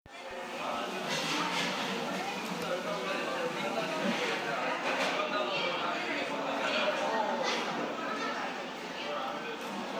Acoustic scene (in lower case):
cafe